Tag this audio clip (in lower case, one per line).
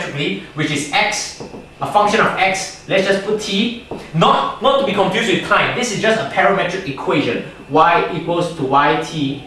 speech